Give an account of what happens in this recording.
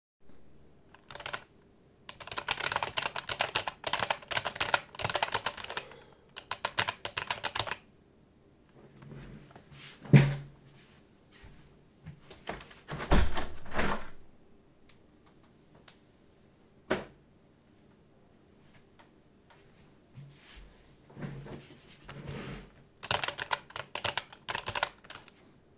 I was working on my computer, when I got up and opened the window to air the room out. I then sat down again and started working again.